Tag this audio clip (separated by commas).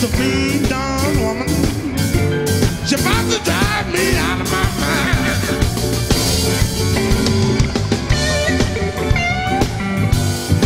Song, Ska, Guitar, Music, Blues, Singing